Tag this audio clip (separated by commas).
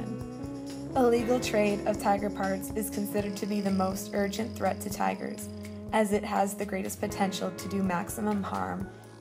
Speech, Music